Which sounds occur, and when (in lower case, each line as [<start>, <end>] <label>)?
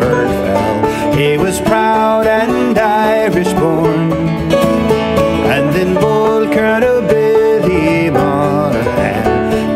[0.00, 0.84] male singing
[0.00, 9.75] music
[0.79, 1.07] breathing
[1.10, 4.16] male singing
[5.39, 9.43] male singing
[9.42, 9.69] breathing